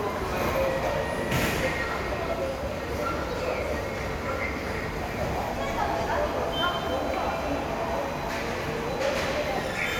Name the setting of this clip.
subway station